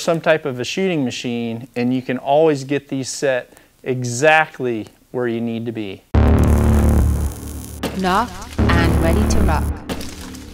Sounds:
Music, Speech

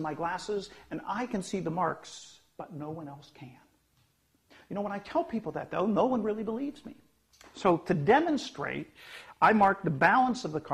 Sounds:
Speech

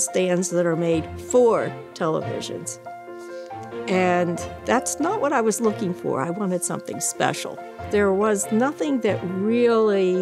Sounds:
Music, Speech

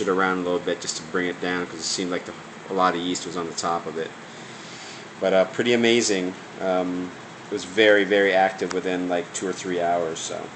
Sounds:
Speech

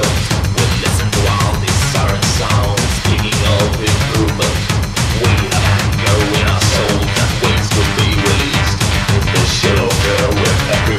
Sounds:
Angry music, Music

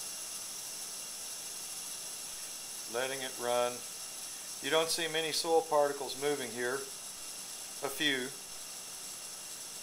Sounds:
Speech

